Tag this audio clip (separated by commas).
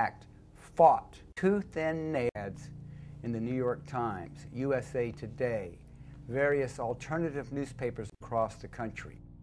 Speech